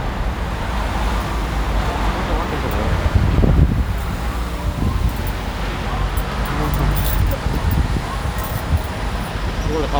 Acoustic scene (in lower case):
street